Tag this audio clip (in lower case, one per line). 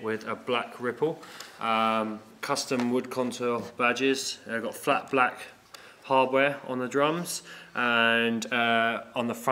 speech